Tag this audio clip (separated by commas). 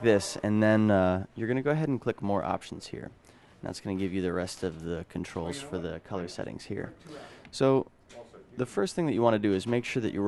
Speech